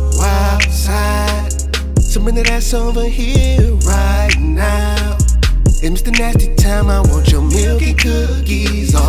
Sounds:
rhythm and blues
music

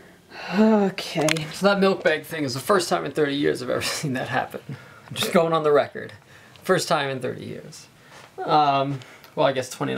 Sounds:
speech

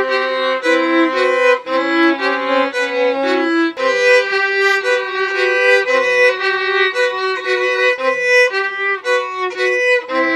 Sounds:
violin
music
musical instrument

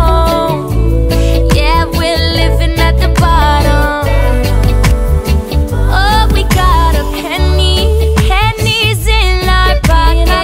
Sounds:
music

